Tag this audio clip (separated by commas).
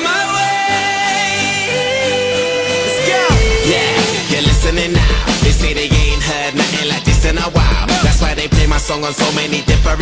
Music, Singing